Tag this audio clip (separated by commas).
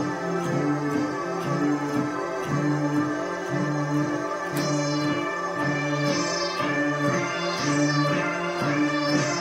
Music